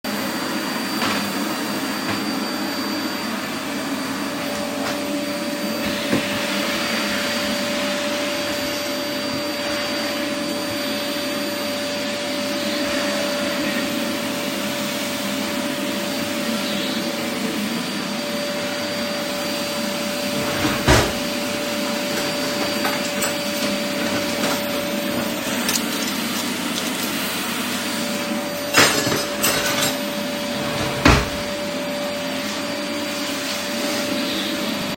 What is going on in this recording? I opened the drawer while vacuum cleaning and put some cutlery in and closed the drawer.